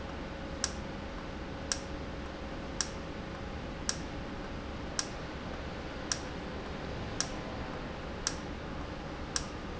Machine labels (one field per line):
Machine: valve